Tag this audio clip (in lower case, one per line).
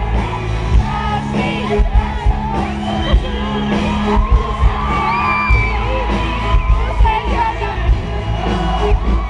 speech
music
female singing